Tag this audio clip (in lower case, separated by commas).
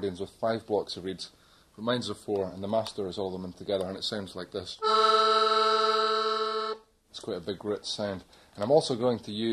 speech, music, background music